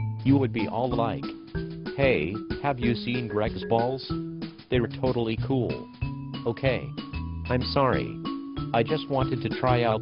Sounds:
Music, Speech

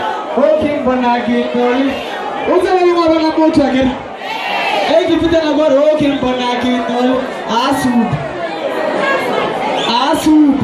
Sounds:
Speech

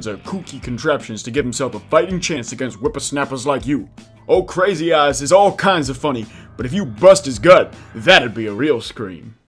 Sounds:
Speech, Music

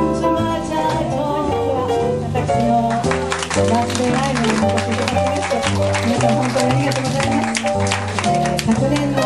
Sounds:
Speech, Music

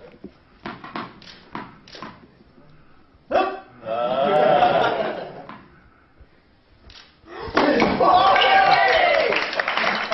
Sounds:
Speech

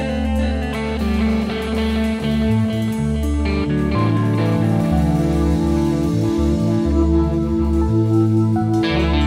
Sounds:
Music

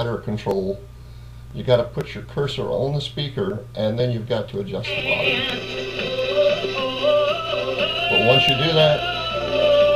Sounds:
Singing, Speech, Music

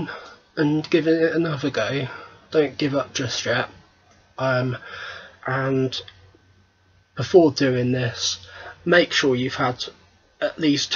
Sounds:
Speech

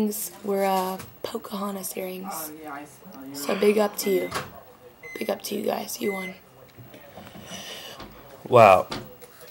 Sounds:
inside a small room, Speech

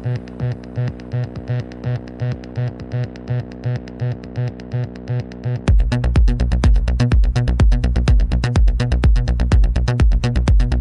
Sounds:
Music

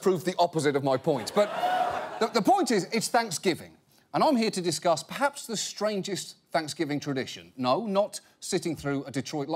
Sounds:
Speech

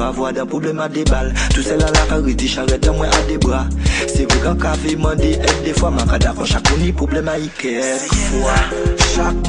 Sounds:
Music

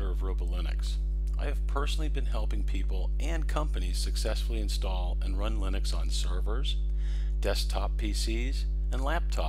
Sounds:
Speech

